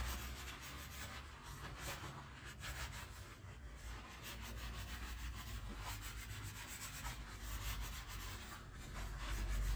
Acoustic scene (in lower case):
kitchen